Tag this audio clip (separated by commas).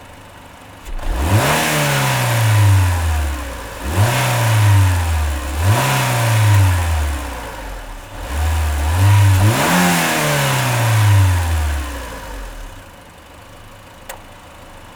Accelerating, Engine